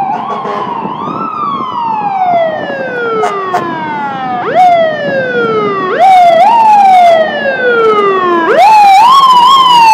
A large emergency vehicle siren sounds and the horn beeps